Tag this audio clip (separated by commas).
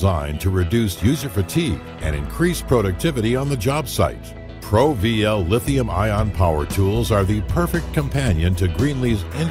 Speech, Music